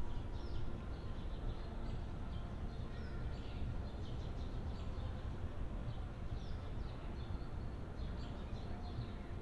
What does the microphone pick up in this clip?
background noise